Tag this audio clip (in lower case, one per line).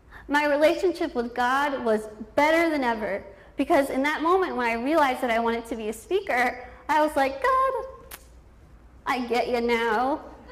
woman speaking